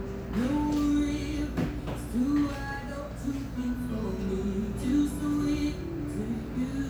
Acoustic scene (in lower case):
cafe